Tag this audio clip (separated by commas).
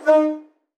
Train, Rail transport, Vehicle